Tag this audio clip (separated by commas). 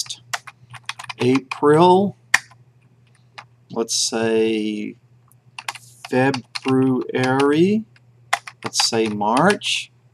inside a small room, Speech